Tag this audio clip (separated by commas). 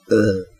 Burping